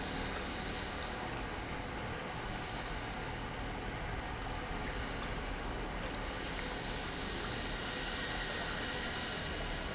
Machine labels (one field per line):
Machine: pump